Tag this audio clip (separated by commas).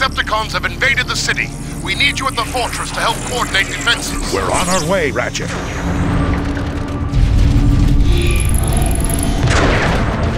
Speech, Music